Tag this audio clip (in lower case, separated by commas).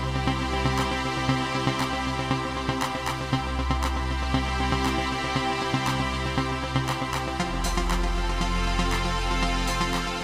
music